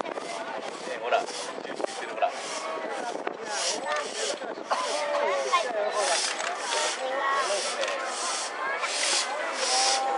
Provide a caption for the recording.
Several people are speaking and there is a hissing noise